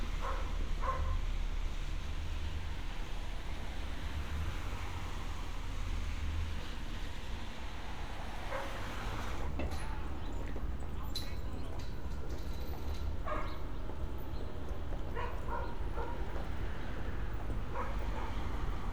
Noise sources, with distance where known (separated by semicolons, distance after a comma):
dog barking or whining, near